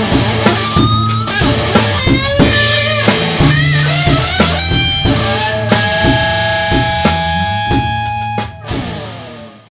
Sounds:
strum, electric guitar, guitar, music, plucked string instrument, musical instrument

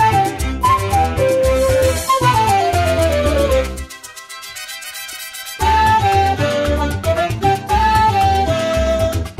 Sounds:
music, video game music

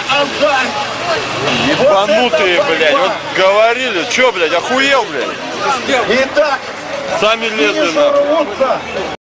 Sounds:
car, speech

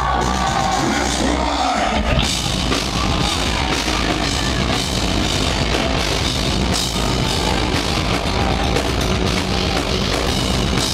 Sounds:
music, heavy metal, speech, musical instrument, inside a large room or hall, rock music

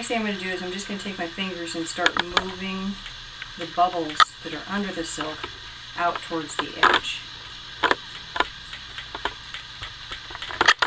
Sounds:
speech

